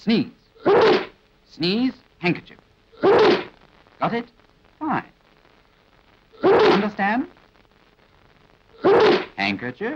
A man speaking as a person sneezes several times